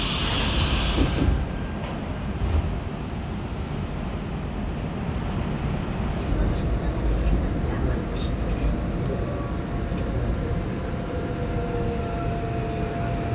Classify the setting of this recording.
subway train